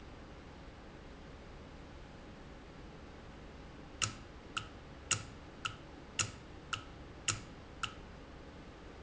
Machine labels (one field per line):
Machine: valve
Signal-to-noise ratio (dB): 6 dB